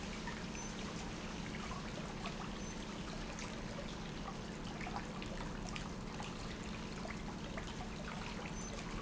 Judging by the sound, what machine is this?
pump